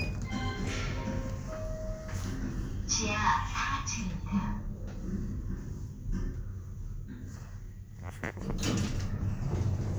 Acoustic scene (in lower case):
elevator